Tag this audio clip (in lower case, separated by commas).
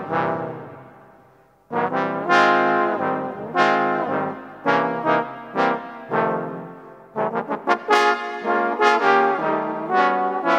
trombone, music